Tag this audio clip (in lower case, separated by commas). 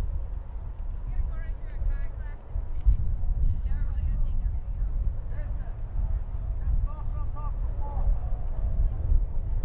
speech